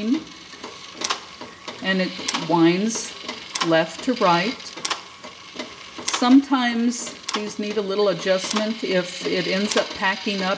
A machine works while a woman talks